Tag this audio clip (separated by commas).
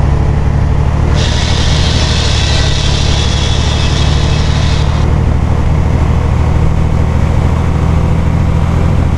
Vehicle, Bus